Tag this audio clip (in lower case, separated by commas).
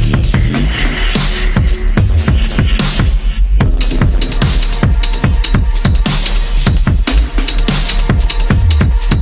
drum and bass, electronic music, music, dubstep